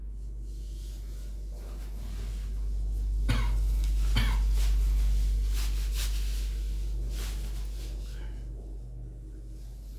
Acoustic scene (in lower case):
elevator